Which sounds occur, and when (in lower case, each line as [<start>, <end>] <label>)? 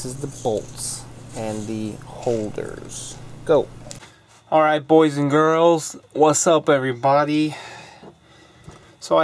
[0.00, 0.66] man speaking
[0.01, 9.23] background noise
[1.32, 2.95] man speaking
[3.37, 3.66] man speaking
[4.50, 5.89] man speaking
[6.13, 8.05] man speaking